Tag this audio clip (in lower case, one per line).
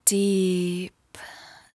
female speech
speech
human voice